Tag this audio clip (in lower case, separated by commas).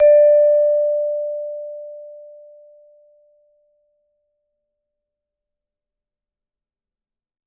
mallet percussion, music, percussion, musical instrument